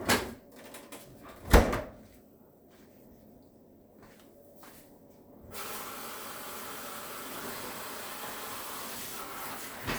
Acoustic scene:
kitchen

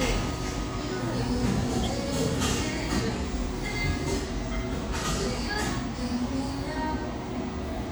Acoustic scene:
cafe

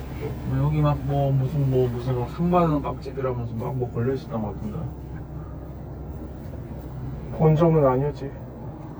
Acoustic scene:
car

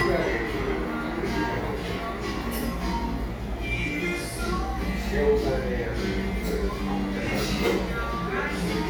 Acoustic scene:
cafe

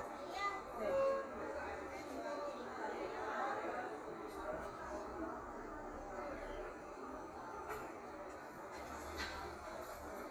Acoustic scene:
cafe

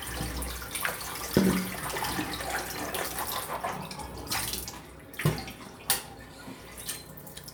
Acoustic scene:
restroom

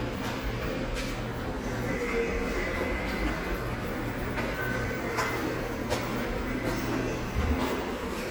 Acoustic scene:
subway station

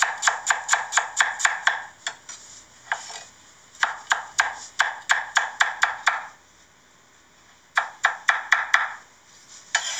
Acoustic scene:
kitchen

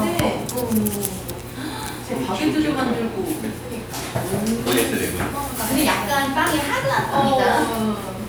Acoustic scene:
crowded indoor space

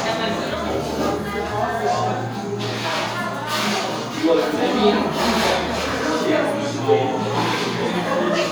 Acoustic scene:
cafe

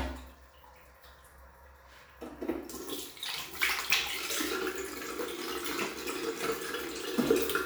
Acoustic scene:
restroom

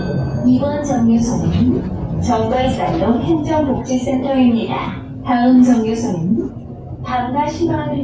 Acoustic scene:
bus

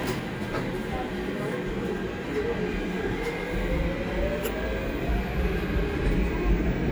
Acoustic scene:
subway train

